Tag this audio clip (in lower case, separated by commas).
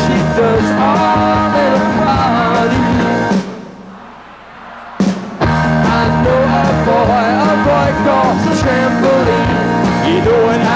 singing, rock and roll, music